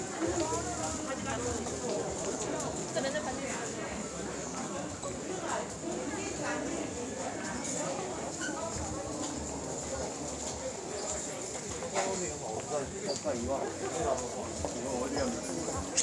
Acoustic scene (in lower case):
crowded indoor space